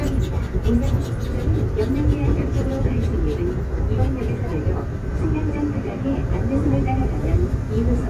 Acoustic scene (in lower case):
subway train